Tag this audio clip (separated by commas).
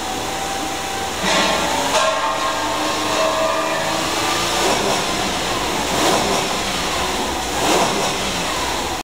Engine, Vehicle, Medium engine (mid frequency)